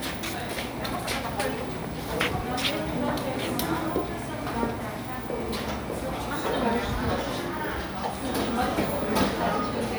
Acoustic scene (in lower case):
cafe